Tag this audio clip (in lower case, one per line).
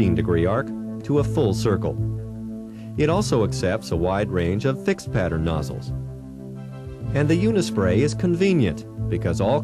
music
speech